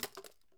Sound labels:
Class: object falling